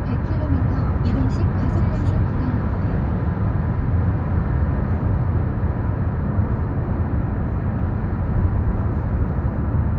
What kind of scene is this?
car